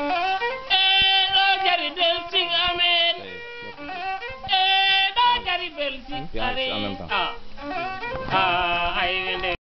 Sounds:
Speech, Music

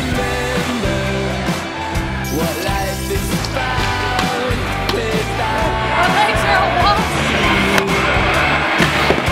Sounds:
Skateboard

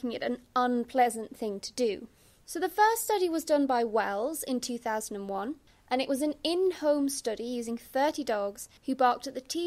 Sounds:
Speech

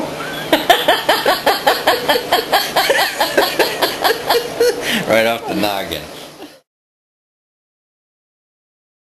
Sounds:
Speech

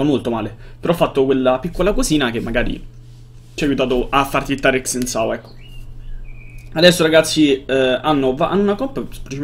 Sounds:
Speech

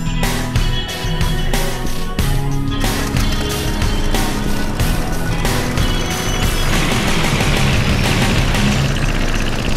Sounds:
Engine, Music, Vehicle, Engine starting

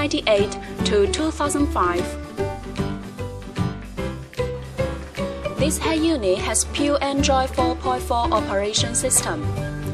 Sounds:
Speech, Music

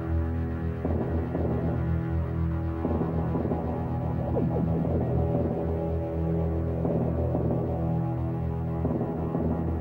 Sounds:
Music

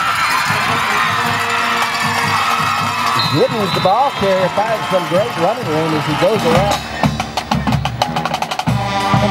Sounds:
Speech, Music

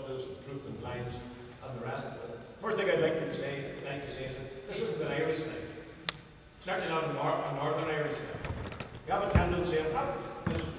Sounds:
Narration, Speech, man speaking

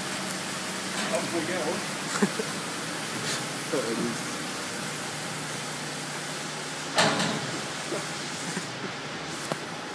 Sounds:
Speech

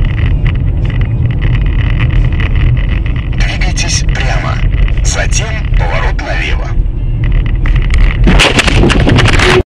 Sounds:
Bicycle, Vehicle, Speech

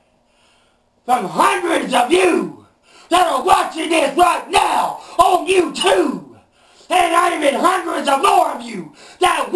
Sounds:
Speech, Yell

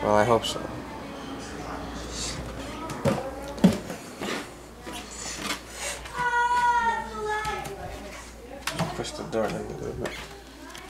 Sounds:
Speech

